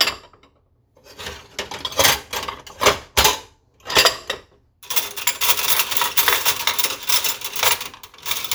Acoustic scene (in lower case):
kitchen